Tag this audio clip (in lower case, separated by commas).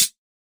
percussion, cymbal, musical instrument, hi-hat, music